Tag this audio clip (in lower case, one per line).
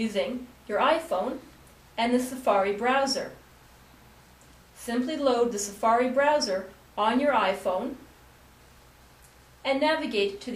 speech